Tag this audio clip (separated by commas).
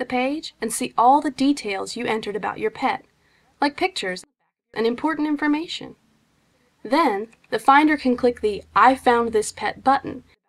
Speech